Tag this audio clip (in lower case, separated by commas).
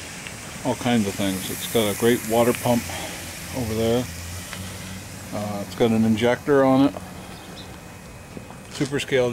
hiss, steam